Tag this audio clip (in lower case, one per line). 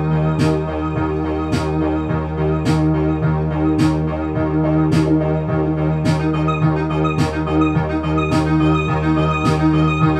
keyboard (musical)
piano
electric piano